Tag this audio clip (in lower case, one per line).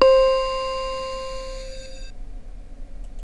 keyboard (musical)
musical instrument
music